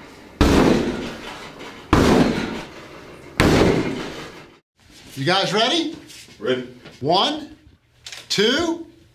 Several loud bangs and then a man speaks